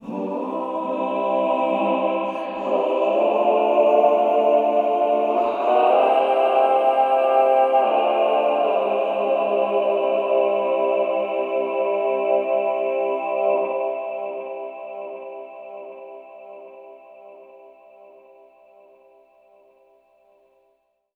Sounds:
singing, music, musical instrument, human voice

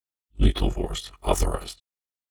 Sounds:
human voice

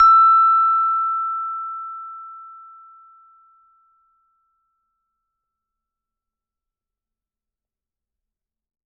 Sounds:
percussion, music, mallet percussion, musical instrument

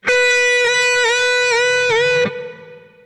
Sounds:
music, plucked string instrument, musical instrument, guitar, electric guitar

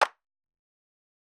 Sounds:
clapping, hands

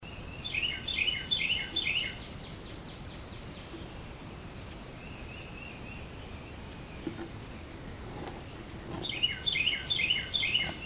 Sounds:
bird, wild animals, animal, tweet, bird call

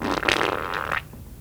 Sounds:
fart

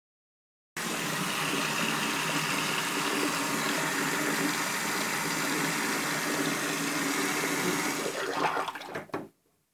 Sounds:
faucet, domestic sounds

